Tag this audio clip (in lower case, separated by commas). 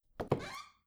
squeak